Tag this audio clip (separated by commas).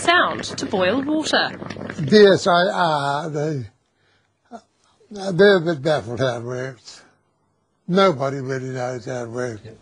Speech, Boiling